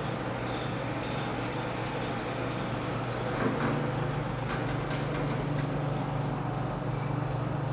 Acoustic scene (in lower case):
elevator